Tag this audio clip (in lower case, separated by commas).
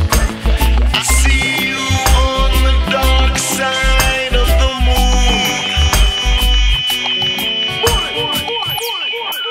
music, reggae